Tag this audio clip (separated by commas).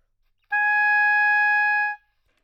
Wind instrument, Music, Musical instrument